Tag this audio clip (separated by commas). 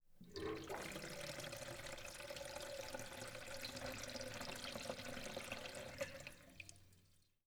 home sounds, Sink (filling or washing)